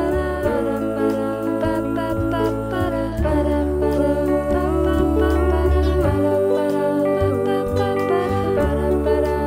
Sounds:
music

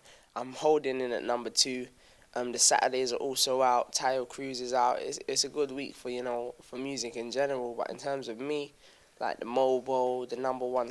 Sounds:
speech

